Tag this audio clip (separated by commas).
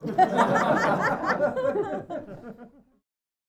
Human voice, Chuckle, Laughter